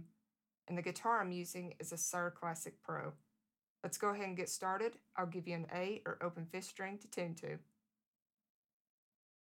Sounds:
Speech

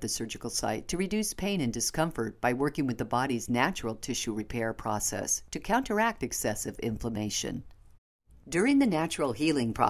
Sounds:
Speech

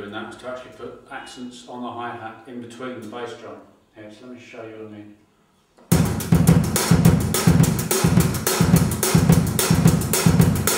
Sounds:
Bass drum, Drum, Music, Speech, Drum kit

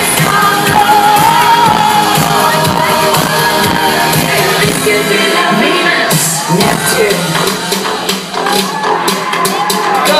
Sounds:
Female singing, Music

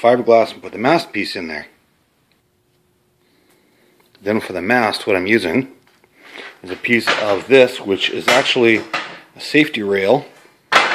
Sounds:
Speech

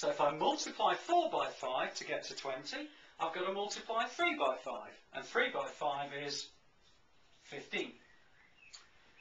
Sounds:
Speech, inside a large room or hall

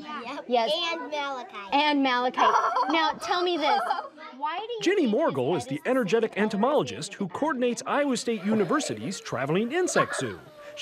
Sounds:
Speech

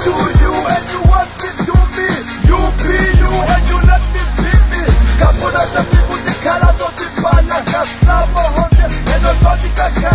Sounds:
Hip hop music, Singing, Music, Song

